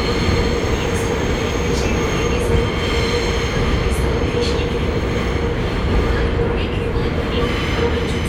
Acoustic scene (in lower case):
subway train